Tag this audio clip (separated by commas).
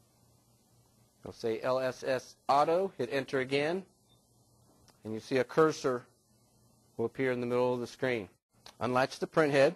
Speech